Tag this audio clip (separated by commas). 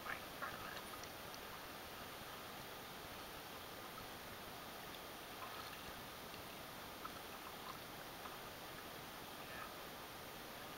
canoe, Water vehicle